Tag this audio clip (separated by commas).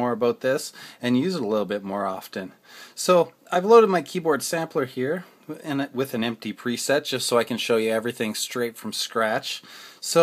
Speech